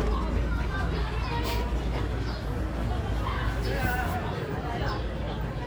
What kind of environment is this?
residential area